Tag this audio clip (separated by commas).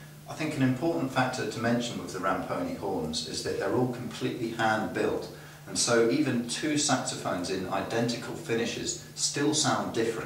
Speech